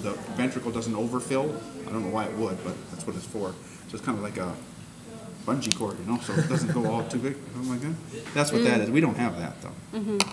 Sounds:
speech

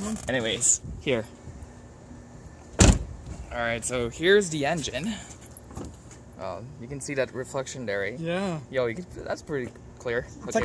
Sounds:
car, speech, vehicle

